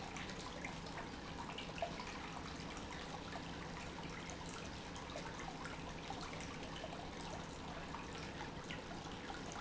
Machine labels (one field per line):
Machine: pump